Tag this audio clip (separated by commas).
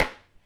dishes, pots and pans, home sounds